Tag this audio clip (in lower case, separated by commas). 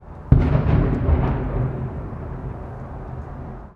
fireworks, explosion